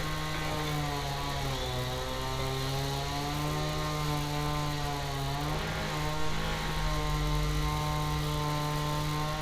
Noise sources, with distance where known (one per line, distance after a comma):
unidentified powered saw, near